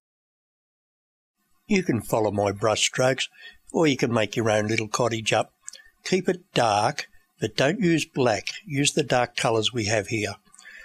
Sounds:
monologue
speech

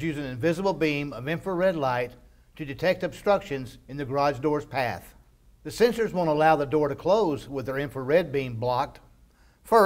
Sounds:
speech

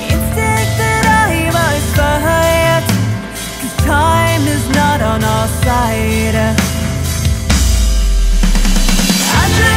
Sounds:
music
tender music

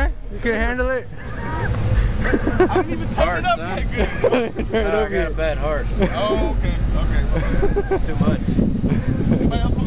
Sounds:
speech

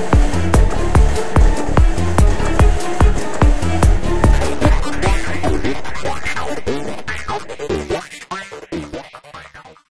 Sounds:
music
printer

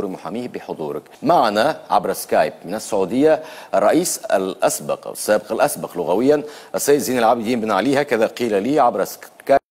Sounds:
speech

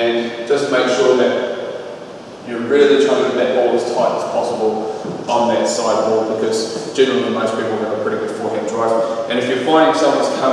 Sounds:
playing squash

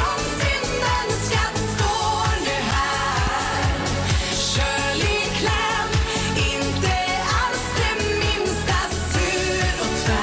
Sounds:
music

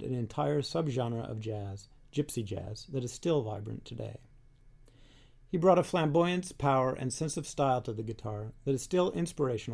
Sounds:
speech

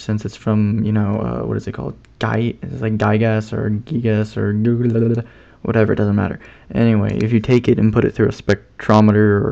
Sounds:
speech

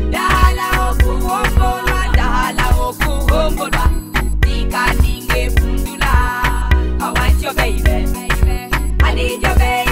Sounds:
music

